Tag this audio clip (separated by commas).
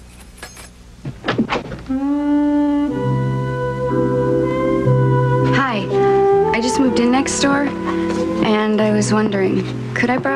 inside a small room, Music, Speech